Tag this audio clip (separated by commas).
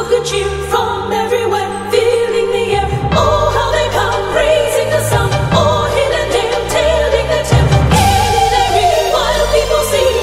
Music